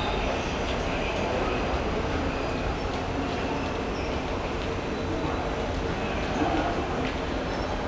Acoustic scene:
subway station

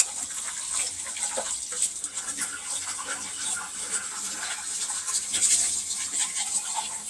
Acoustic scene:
kitchen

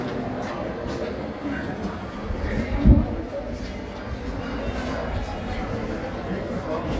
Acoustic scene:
crowded indoor space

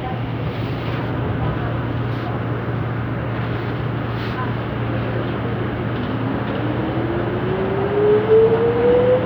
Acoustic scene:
subway train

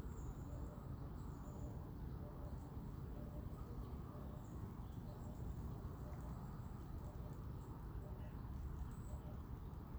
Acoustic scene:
park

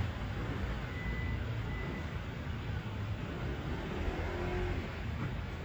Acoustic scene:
street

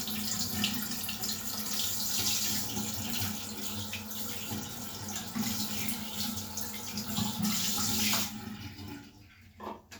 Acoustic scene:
restroom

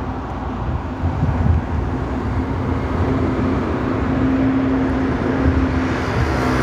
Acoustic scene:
street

